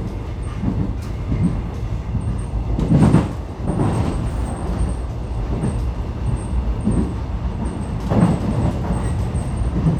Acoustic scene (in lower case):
subway train